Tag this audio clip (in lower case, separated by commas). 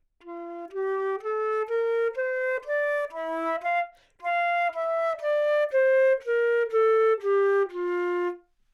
musical instrument, music, woodwind instrument